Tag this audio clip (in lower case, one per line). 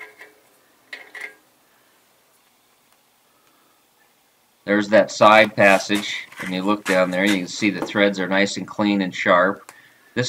speech